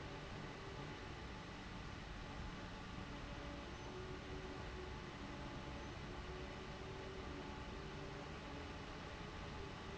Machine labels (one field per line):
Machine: fan